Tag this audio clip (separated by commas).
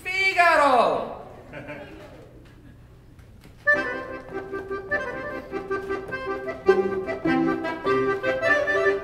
Speech, Music, fiddle, Musical instrument